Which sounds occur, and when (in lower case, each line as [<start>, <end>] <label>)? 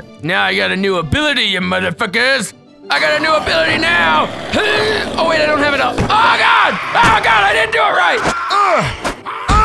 [0.00, 9.64] music
[0.00, 9.64] video game sound
[0.26, 2.52] man speaking
[2.86, 4.22] man speaking
[2.89, 3.75] groan
[4.52, 5.09] groan
[5.11, 6.71] man speaking
[5.86, 6.07] whack
[6.05, 8.33] shout
[6.58, 7.64] groan
[6.90, 8.23] man speaking
[8.13, 8.27] whack
[8.20, 9.04] groan
[8.46, 8.91] man speaking
[8.52, 9.04] shout
[8.98, 9.20] whack
[9.22, 9.64] groan